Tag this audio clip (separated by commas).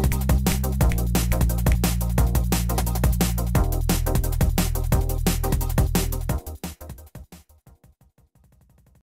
Music